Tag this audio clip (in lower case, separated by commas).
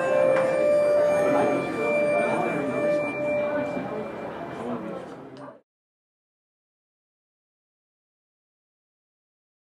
speech, music